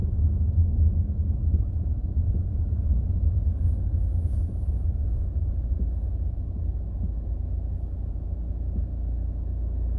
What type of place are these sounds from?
car